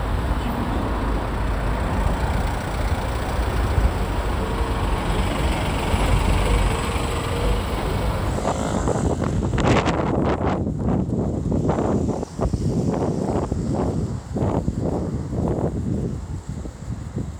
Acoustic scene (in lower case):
street